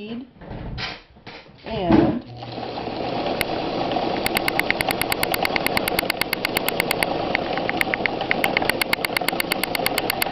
A woman speaks followed by the use of a sewing machine